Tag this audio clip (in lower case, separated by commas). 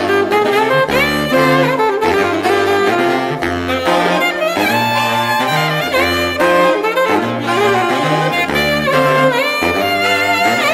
playing saxophone